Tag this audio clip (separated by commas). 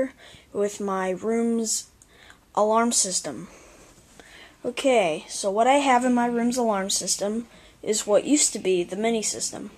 Speech